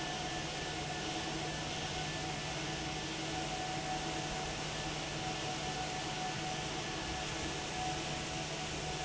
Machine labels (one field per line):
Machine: fan